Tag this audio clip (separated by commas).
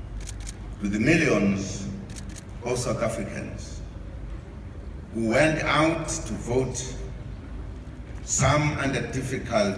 Female speech, Speech, man speaking